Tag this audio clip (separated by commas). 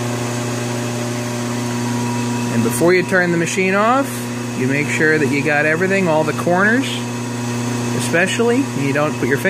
Speech